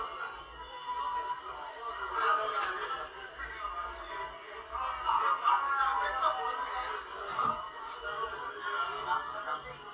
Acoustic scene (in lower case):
crowded indoor space